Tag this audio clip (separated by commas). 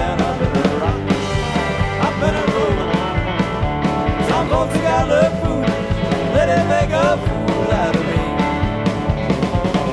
Music, Rock and roll, Country